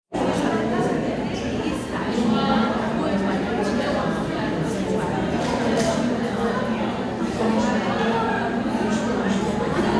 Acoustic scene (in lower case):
crowded indoor space